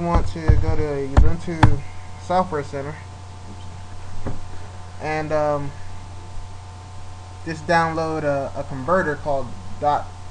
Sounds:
speech

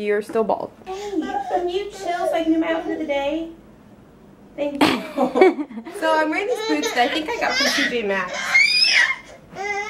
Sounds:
inside a large room or hall, speech

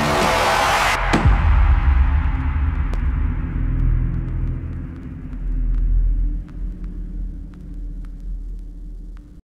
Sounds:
music

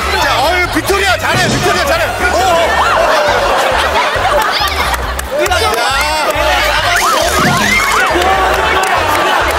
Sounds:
music, speech

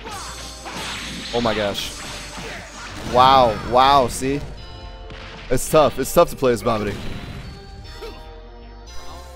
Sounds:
music, speech, smash

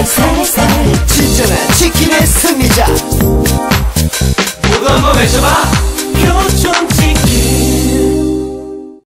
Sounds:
speech, music

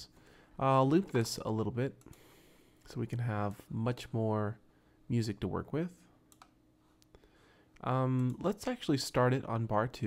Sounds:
speech

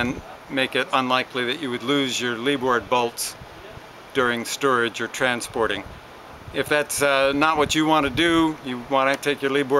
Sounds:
speech

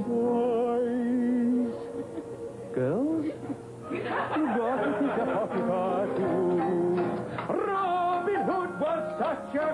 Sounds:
music, inside a public space

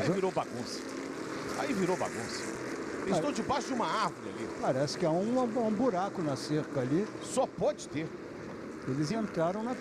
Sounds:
speech, vehicle, car, motor vehicle (road)

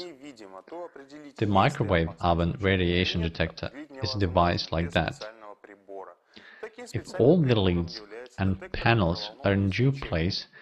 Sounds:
speech

